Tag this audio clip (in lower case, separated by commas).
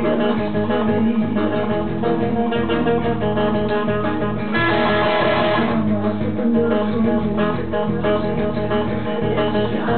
musical instrument, electric guitar, music, bass guitar, acoustic guitar, plucked string instrument, strum, guitar